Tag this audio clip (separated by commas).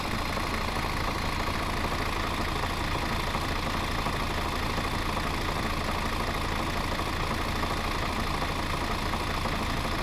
Vehicle, Engine, Idling, Motor vehicle (road), Bus